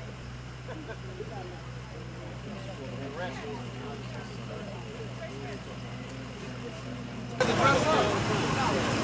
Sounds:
speech

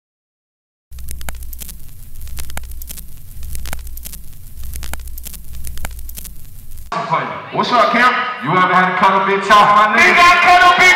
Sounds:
speech

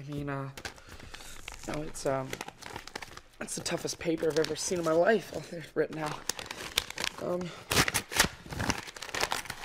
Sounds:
speech, inside a large room or hall

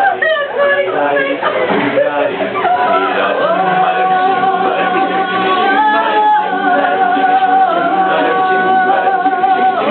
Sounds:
music, speech, vocal music, male singing

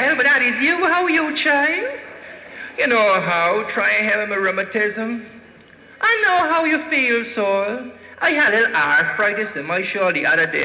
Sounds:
speech

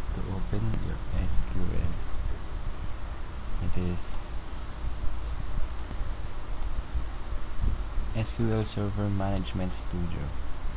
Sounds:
speech

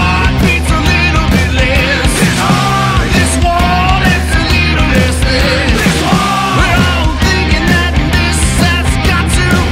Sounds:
dance music, music

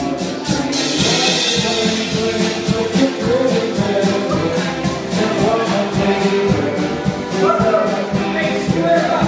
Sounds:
speech, male singing, music

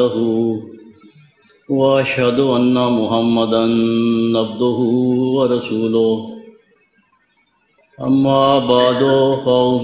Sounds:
speech, man speaking

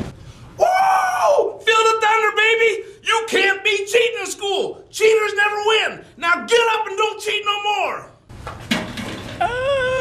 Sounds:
speech, inside a small room

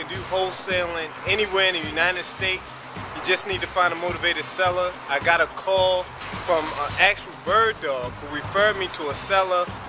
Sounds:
music, speech

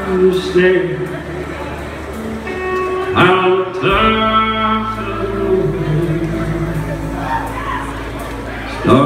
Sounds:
speech, music

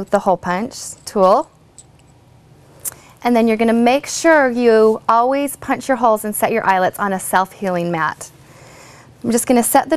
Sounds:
speech

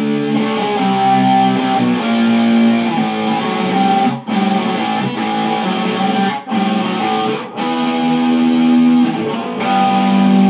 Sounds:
musical instrument, guitar, plucked string instrument, music

